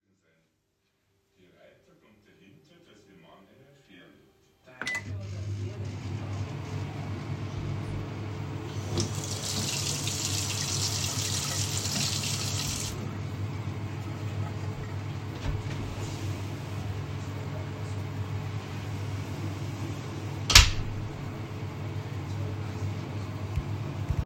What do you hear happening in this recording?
I turn on the microwave. Afterwards I turn on the faucet and turn it off again. Then I open a door and close it. Whilst all of this is going on, a TV is running in the background.